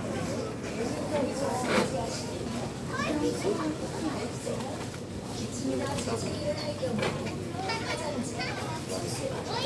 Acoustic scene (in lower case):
crowded indoor space